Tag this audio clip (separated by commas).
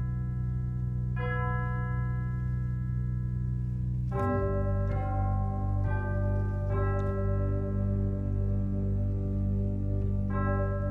Music